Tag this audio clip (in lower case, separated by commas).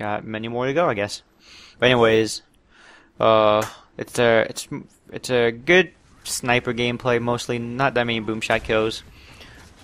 speech